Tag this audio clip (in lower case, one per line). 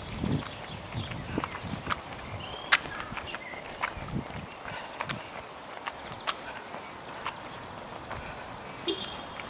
footsteps